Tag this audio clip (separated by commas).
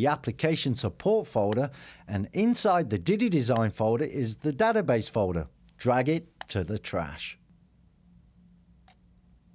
Speech